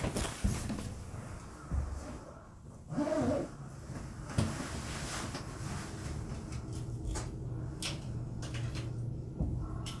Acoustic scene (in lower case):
elevator